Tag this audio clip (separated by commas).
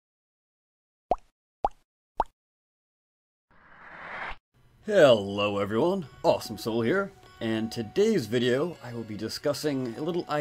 Speech, Music, Plop, inside a small room